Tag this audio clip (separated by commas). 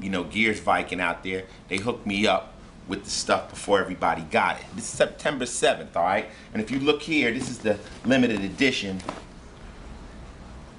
Speech